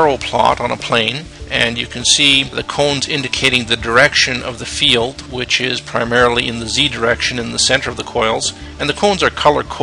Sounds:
music, speech

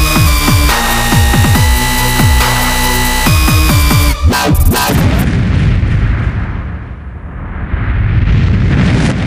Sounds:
music, sampler

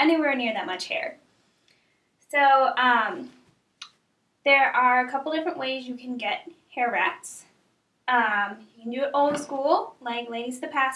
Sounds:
speech

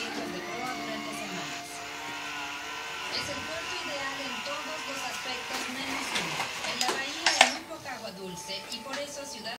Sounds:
speech, music

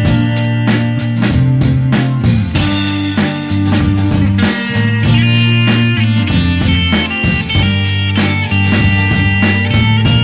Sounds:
music

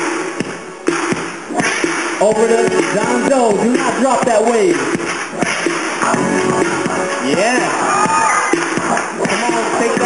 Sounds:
cheering, music, speech

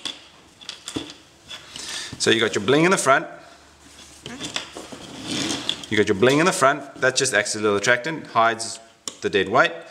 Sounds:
speech, inside a small room

